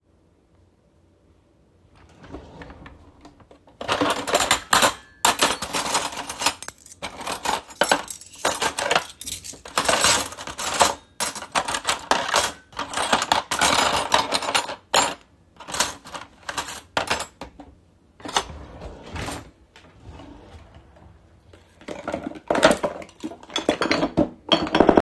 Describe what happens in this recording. I opened a drawer and searched for a suitable knife, then I closed the drawer and opened a different one to look for needed spices.